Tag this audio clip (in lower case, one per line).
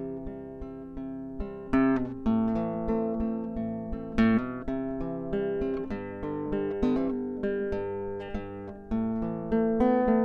music